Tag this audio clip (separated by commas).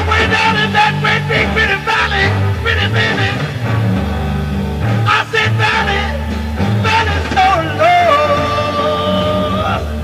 Blues, Music